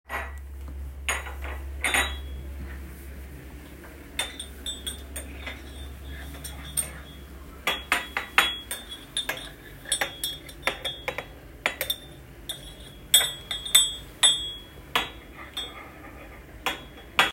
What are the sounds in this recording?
cutlery and dishes